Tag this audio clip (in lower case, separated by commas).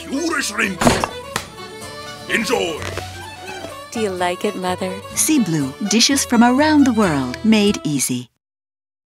dishes, pots and pans